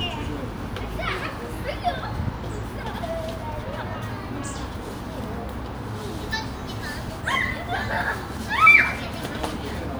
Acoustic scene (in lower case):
park